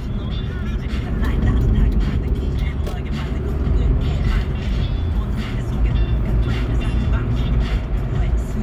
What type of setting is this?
car